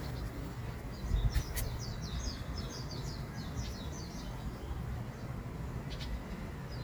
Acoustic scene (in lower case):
park